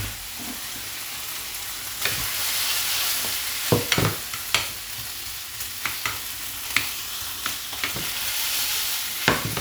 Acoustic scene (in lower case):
kitchen